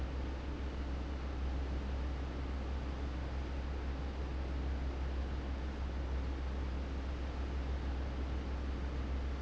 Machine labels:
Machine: fan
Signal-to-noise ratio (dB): 0 dB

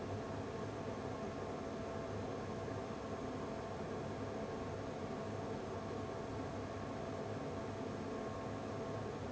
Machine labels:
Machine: fan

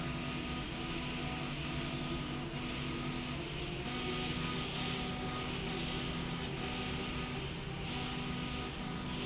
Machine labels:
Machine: slide rail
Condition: abnormal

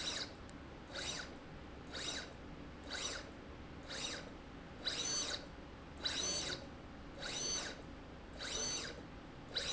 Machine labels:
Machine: slide rail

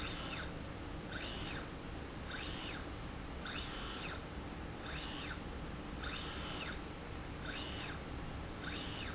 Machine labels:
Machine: slide rail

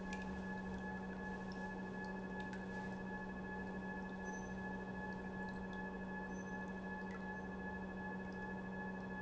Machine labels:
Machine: pump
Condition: normal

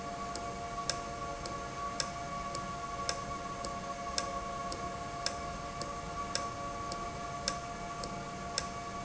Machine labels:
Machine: valve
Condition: normal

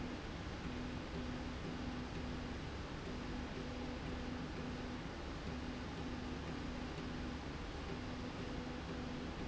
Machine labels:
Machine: slide rail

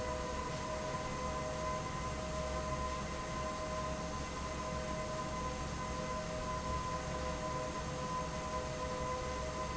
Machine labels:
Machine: fan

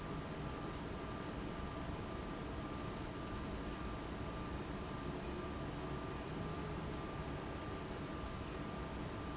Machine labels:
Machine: fan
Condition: abnormal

